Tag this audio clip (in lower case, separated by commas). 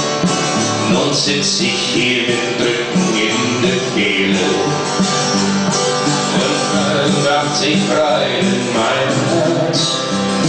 country, music